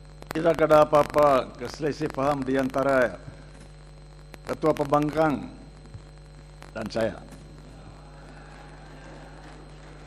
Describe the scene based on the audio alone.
A man is giving a speech